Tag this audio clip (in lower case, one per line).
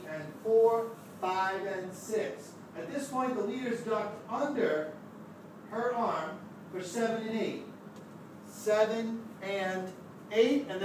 speech